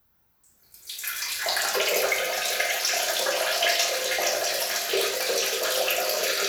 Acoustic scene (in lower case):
restroom